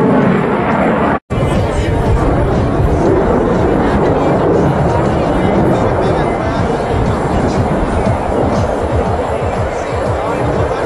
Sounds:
Music, Speech

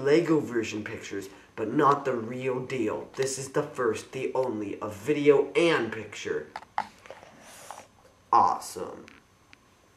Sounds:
Speech

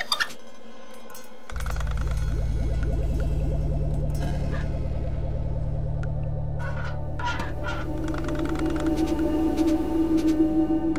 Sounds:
Music

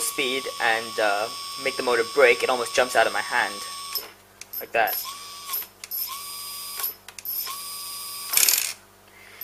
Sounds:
Ratchet, Mechanisms

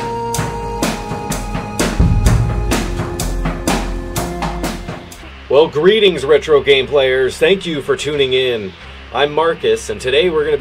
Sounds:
Rimshot

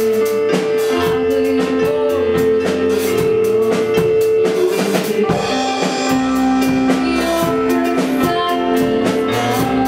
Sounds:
Music

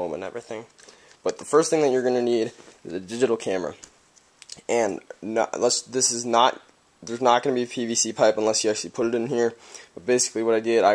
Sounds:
Speech

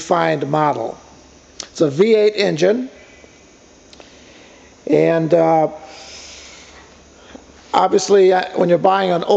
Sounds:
Speech

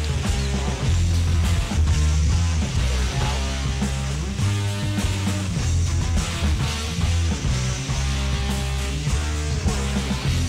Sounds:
Music

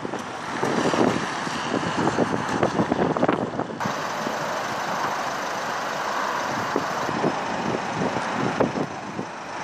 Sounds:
Vehicle, Motor vehicle (road), Car

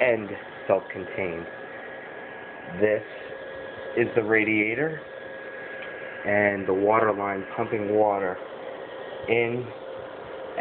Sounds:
Speech

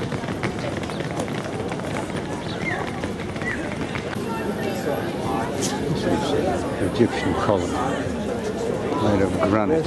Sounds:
Animal, Bird, Speech

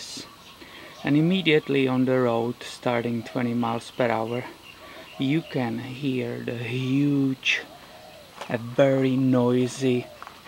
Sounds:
Speech

